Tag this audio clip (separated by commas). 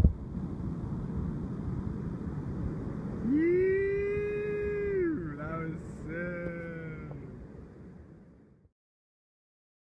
Speech